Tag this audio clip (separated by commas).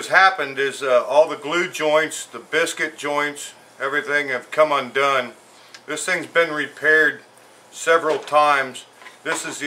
Speech